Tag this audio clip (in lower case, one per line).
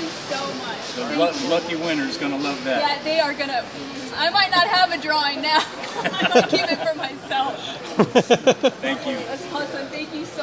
speech